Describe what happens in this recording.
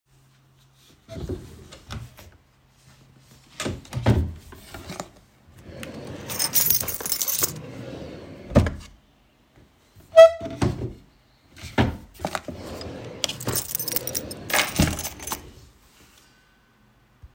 I open the different drawer of my desk to find my key chain, I find one but it is the wrong one so I put it back and search for mine in another drawer till I find it.